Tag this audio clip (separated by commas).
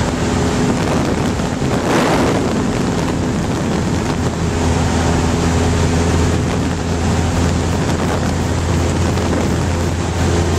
Vehicle, Aircraft